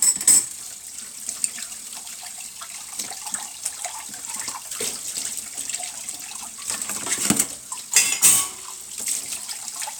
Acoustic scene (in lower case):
kitchen